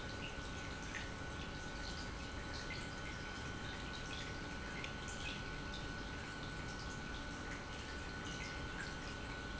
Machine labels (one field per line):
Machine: pump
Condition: normal